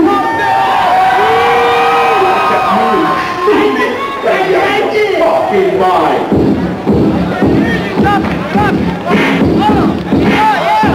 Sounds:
Cheering, Speech, Music

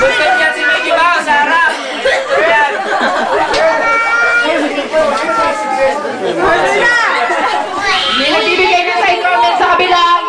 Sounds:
Speech

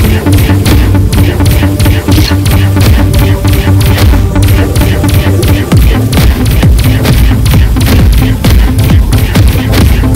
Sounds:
Music

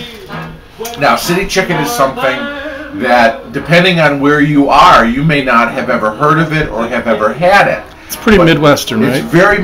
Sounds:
Music, Speech

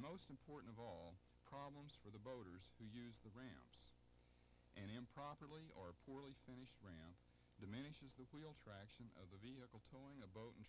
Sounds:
Speech

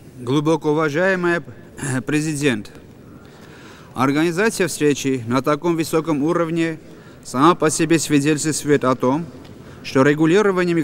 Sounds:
Speech, Narration, Male speech

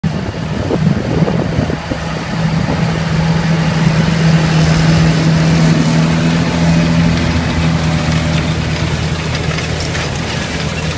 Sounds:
Vehicle

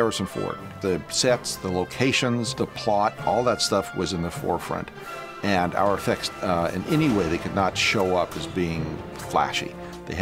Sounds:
Music, Speech

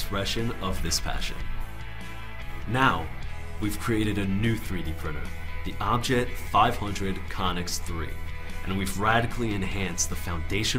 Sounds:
Speech, Music

